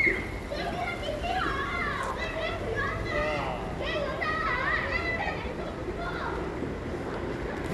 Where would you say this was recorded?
in a park